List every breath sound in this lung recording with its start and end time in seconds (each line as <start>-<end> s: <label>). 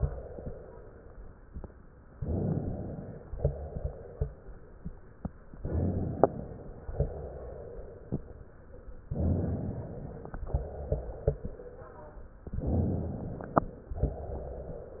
0.00-1.48 s: exhalation
2.22-3.28 s: inhalation
3.38-4.86 s: exhalation
5.62-6.84 s: inhalation
6.94-8.43 s: exhalation
9.18-10.41 s: inhalation
10.47-12.22 s: exhalation
12.63-13.86 s: inhalation
13.89-15.00 s: exhalation